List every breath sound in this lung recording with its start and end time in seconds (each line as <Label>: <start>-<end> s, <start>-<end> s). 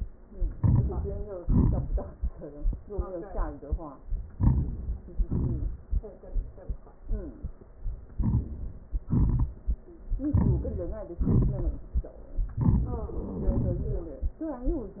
Inhalation: 0.52-0.88 s, 4.34-4.71 s, 8.15-8.45 s, 10.27-10.67 s, 12.59-12.94 s
Exhalation: 1.41-1.99 s, 5.31-5.81 s, 9.08-9.53 s, 11.20-11.80 s